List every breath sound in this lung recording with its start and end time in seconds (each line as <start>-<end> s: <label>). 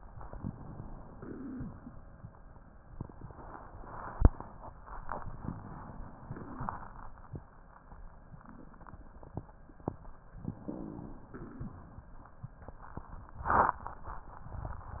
0.28-1.08 s: inhalation
1.08-1.67 s: exhalation
1.08-1.67 s: crackles
5.03-6.28 s: inhalation
6.28-7.02 s: exhalation
6.28-7.02 s: crackles
10.55-11.37 s: inhalation
11.37-11.95 s: exhalation
11.37-11.95 s: crackles